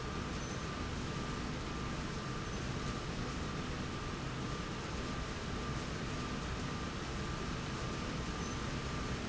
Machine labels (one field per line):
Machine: slide rail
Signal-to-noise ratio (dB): -6 dB